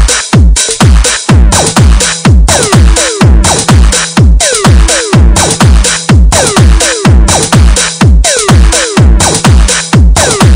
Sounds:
rhythm and blues
disco
music

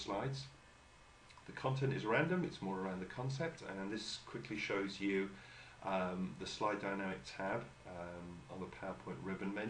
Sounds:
speech

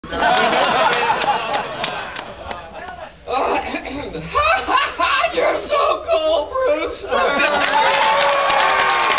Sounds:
snicker
people sniggering

